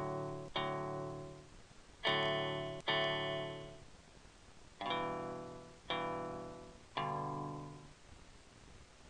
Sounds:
musical instrument, guitar, plucked string instrument, music

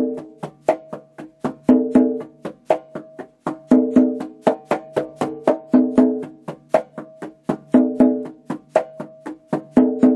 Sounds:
playing bongo

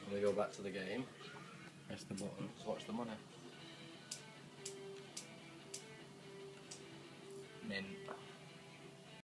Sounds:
music, speech

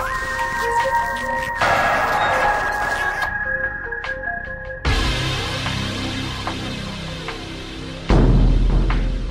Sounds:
music, scary music

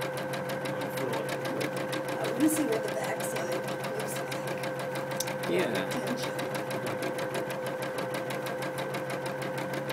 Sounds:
speech, sewing machine

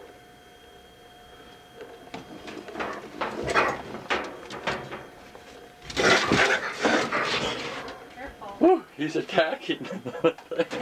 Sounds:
speech, inside a small room

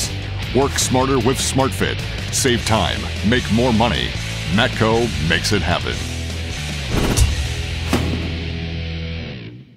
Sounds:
music, speech

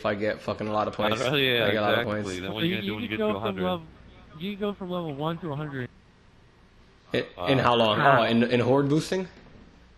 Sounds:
speech

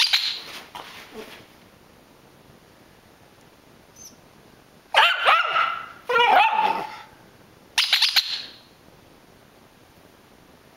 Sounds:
bark, fox barking, dog, animal, yip, whimper (dog), pets

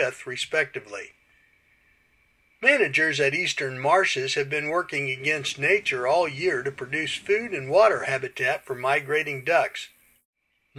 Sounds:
speech

